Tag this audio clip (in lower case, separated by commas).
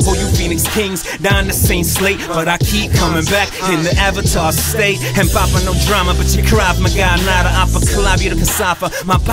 music, rhythm and blues